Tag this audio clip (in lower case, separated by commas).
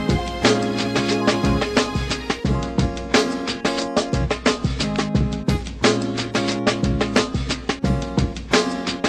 music, musical instrument, electric guitar, guitar, plucked string instrument